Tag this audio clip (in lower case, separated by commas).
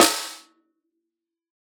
snare drum, percussion, musical instrument, drum, music